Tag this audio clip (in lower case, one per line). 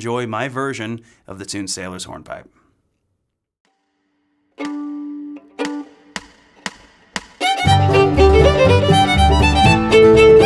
pizzicato
fiddle
bowed string instrument